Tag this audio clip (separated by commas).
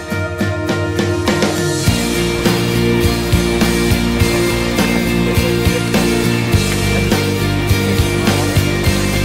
Music